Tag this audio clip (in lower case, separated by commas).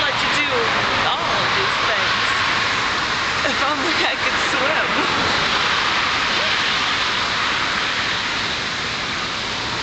speech, waterfall